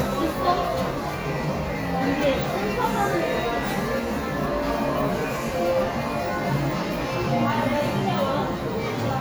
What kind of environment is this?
crowded indoor space